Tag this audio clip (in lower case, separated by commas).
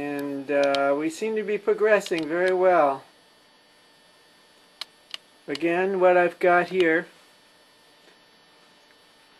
speech, tap